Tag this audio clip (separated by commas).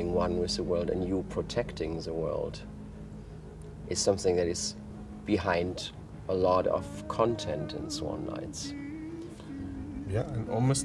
Music, Speech